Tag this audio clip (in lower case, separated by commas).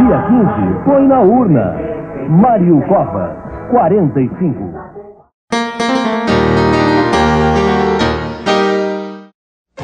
keyboard (musical), piano